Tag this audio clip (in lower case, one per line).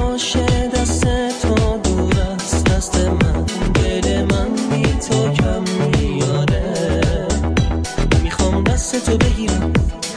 music